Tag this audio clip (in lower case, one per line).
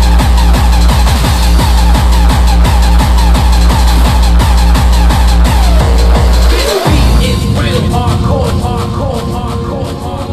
music